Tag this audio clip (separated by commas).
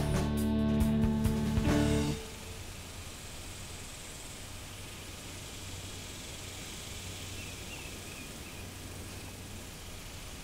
Music